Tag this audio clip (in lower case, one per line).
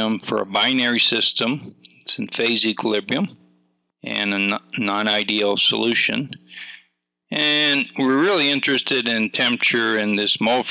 speech